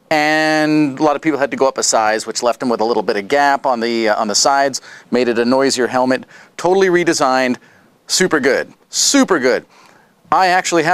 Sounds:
Speech

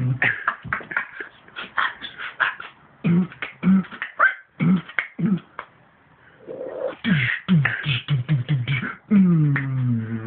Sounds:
Vocal music, Beatboxing

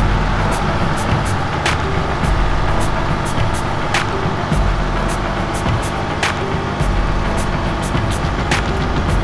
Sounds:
Music, Truck, Vehicle

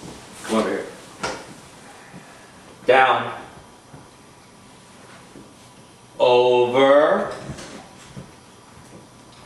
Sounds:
Speech

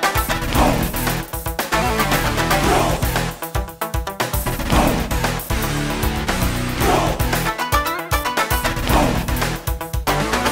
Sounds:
Music, Video game music

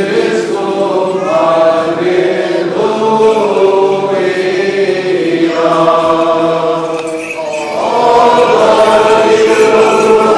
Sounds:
Music, Chant

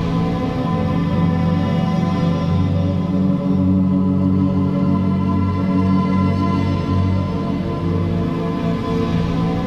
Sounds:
Music

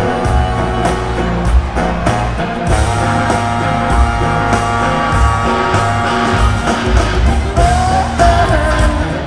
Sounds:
Music

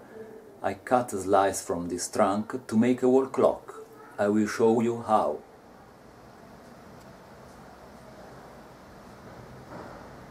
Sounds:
Speech

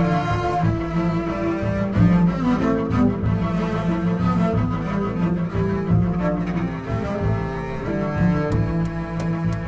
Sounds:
Wedding music, Music

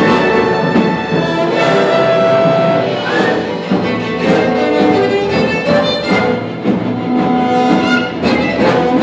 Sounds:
Music, Cello, Musical instrument, fiddle, Bowed string instrument

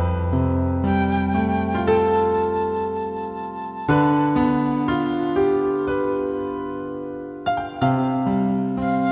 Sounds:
Music

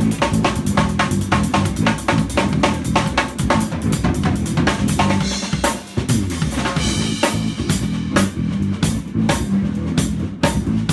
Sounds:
Drum kit, Musical instrument, Rimshot, Drum, Music

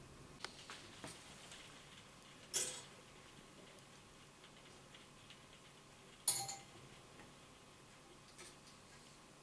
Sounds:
Tick

